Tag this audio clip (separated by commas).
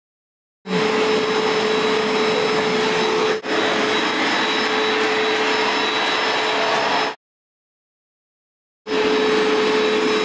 vacuum cleaner cleaning floors